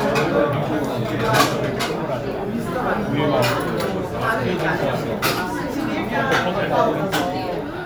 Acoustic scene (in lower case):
restaurant